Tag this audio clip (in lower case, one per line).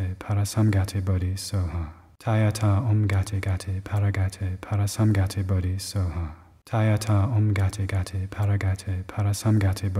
speech
mantra